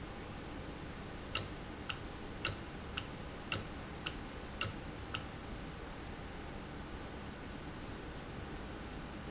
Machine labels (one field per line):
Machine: valve